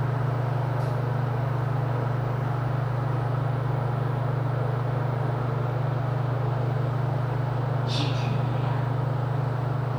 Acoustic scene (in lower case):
elevator